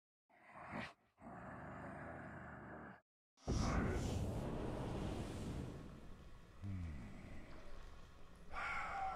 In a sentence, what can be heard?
Wind rustling, and a man breathing